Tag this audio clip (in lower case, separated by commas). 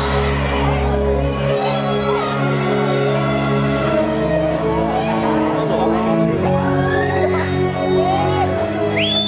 music, speech